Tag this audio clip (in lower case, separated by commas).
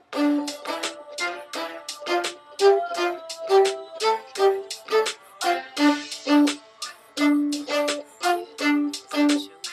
fiddle, musical instrument, music